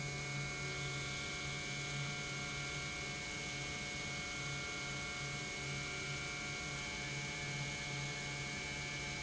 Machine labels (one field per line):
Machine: pump